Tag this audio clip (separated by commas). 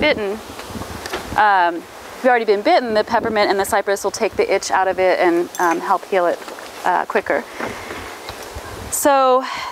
Speech